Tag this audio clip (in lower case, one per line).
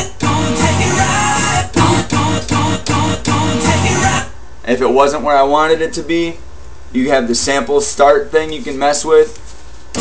radio